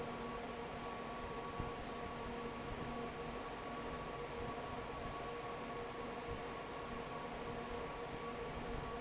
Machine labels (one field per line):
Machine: fan